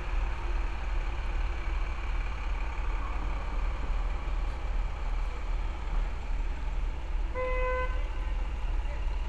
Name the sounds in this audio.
large-sounding engine, car horn